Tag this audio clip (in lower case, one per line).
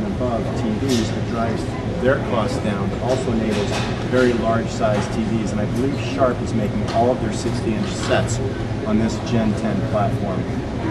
speech